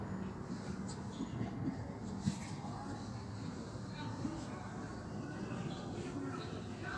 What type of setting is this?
park